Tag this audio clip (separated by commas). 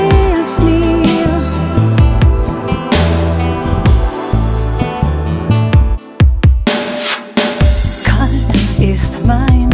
Music, Dubstep